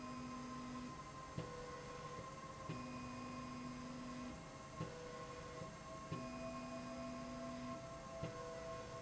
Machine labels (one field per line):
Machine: slide rail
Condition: normal